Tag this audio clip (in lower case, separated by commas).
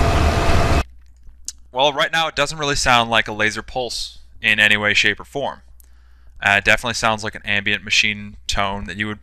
speech